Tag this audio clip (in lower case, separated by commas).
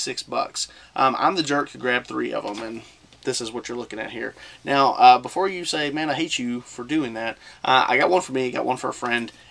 speech